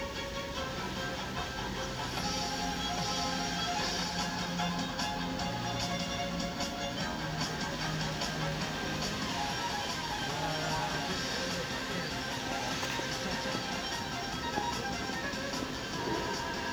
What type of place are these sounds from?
park